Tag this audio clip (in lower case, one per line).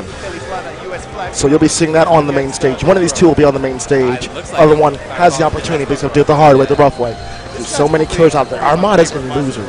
music
speech